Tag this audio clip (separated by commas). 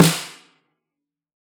Music, Drum, Snare drum, Percussion, Musical instrument